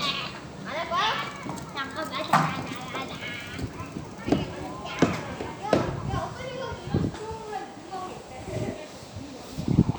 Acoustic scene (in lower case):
park